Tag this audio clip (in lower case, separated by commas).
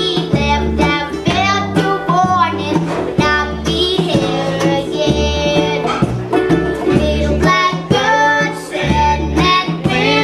music